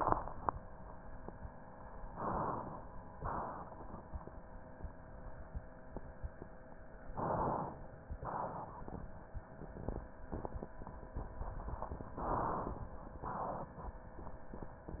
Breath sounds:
Inhalation: 1.99-2.92 s, 7.12-8.14 s, 12.14-13.17 s
Exhalation: 3.17-4.20 s, 8.20-9.22 s, 13.19-14.21 s

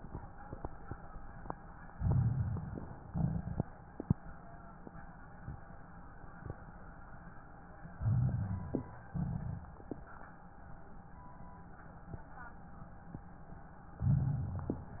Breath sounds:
Inhalation: 1.94-3.00 s, 7.93-8.99 s, 14.02-15.00 s
Exhalation: 3.04-3.67 s, 9.11-9.90 s
Crackles: 1.94-3.00 s, 3.04-3.67 s, 7.93-8.99 s, 9.11-9.90 s, 14.02-15.00 s

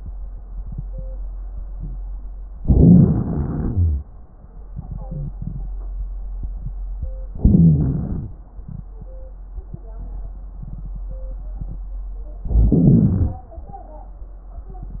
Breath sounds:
Inhalation: 2.59-4.09 s, 7.33-8.36 s, 12.46-13.49 s
Wheeze: 5.02-5.38 s, 7.33-8.36 s

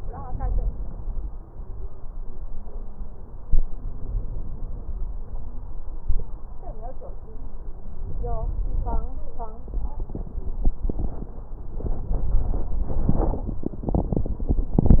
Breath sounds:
Inhalation: 3.52-5.02 s, 8.04-9.09 s

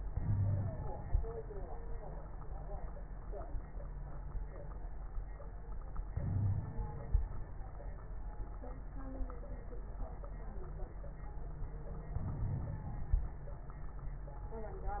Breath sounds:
Inhalation: 0.09-0.99 s, 6.13-7.14 s, 12.10-13.32 s
Wheeze: 0.20-0.71 s, 6.21-6.65 s
Crackles: 12.10-13.32 s

